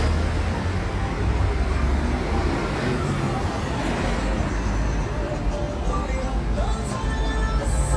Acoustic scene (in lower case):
street